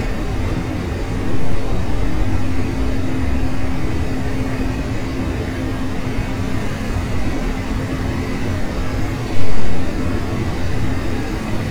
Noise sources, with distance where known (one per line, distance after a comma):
large-sounding engine, near